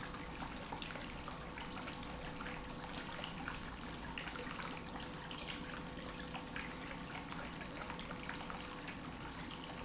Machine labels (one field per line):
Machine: pump